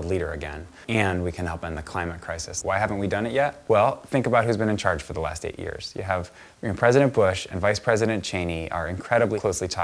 A male person speaking in a monologue style